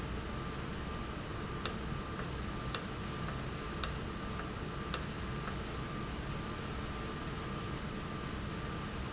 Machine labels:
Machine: valve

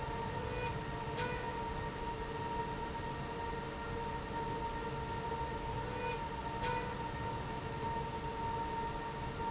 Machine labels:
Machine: slide rail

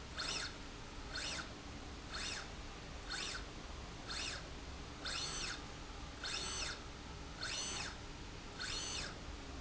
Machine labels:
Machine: slide rail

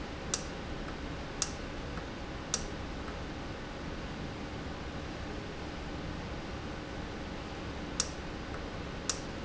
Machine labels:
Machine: valve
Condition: normal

